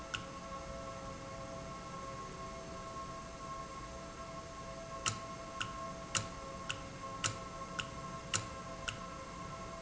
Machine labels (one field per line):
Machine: valve